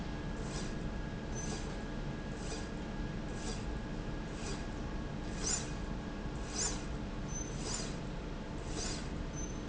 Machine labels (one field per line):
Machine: slide rail